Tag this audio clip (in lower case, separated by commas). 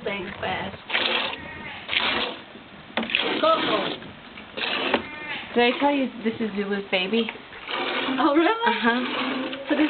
bleat, speech